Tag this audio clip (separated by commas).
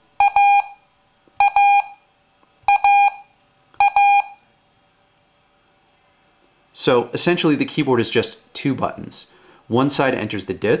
Speech